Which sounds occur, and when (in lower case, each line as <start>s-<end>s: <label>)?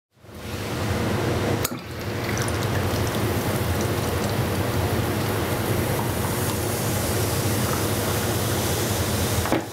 0.1s-9.7s: mechanisms
1.6s-1.7s: generic impact sounds
1.6s-9.7s: fill (with liquid)
5.9s-6.0s: generic impact sounds
6.2s-6.3s: generic impact sounds
6.4s-6.5s: generic impact sounds
7.6s-7.8s: generic impact sounds
9.4s-9.6s: generic impact sounds